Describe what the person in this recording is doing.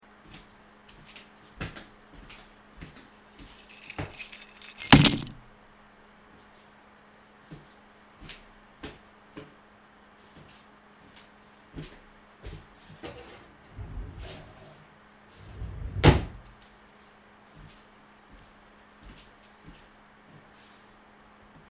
I walked up to my desk, put my keys on my desk, then walked to a nearby drawer and opened and closed it. Then walked back to my desk again.